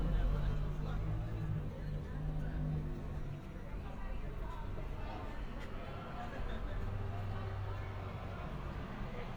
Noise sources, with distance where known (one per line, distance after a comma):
person or small group talking